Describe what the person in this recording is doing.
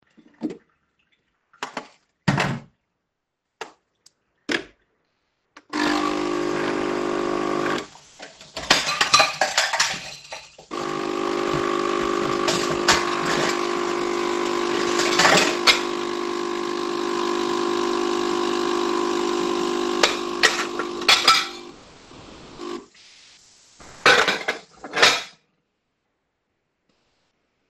I made myself a coffee. While the coffee was running, I washed a few dishes.